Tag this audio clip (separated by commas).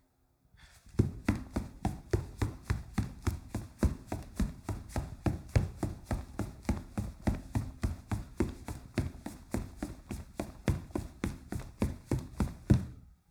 Run